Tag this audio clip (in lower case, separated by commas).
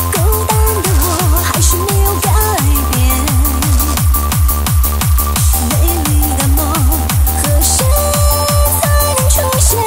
electronic music, techno, music